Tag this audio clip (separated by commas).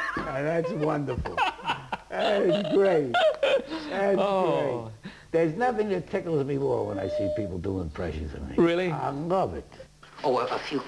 Speech